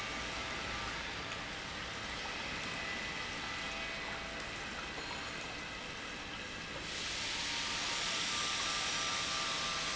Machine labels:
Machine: pump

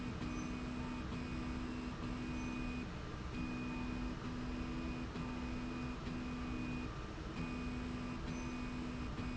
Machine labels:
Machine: slide rail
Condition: normal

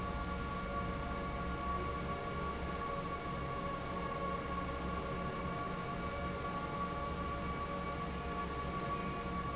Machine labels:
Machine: fan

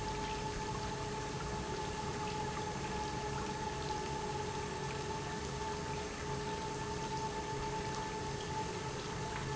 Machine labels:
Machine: pump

